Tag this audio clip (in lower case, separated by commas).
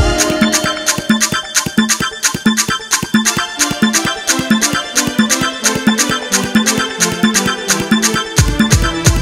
afrobeat, music